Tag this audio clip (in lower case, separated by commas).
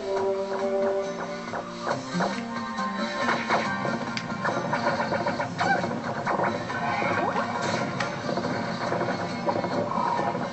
crash, music